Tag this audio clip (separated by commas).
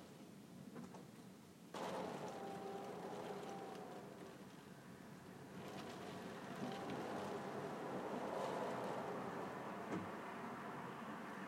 Wind, Rain, Water